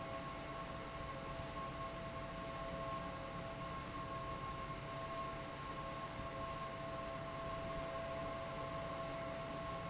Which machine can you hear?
fan